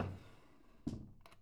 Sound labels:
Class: drawer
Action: opening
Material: wooden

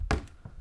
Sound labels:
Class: cupboard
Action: opening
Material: wooden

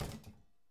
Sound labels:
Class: cupboard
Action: closing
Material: metal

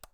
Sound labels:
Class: switch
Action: being turned on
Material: plastic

